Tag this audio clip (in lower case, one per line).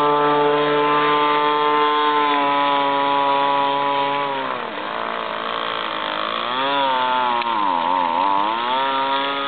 speedboat
water vehicle